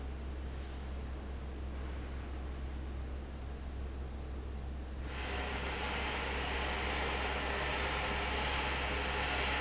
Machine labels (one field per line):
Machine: fan